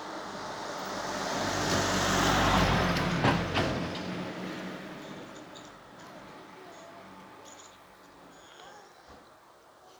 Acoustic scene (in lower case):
residential area